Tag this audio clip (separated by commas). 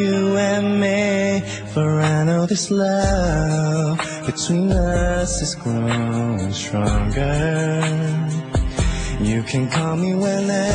Music